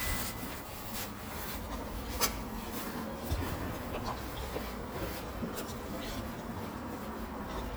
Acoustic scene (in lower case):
residential area